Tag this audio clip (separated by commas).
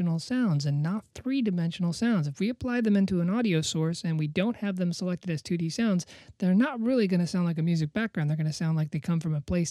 Speech